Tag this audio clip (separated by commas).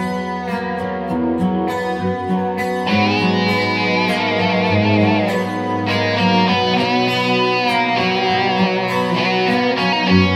Music, Musical instrument, Bass guitar, Electric guitar, Guitar